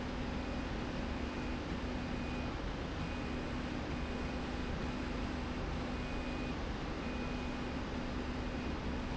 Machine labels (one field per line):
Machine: slide rail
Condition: normal